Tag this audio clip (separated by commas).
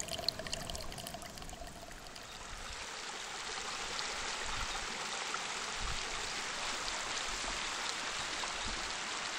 Water